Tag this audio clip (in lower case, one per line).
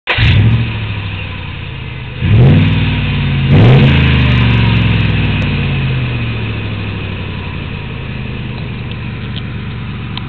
vehicle
outside, urban or man-made